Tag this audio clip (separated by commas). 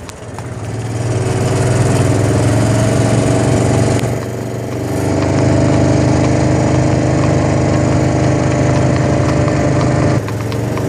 Clip-clop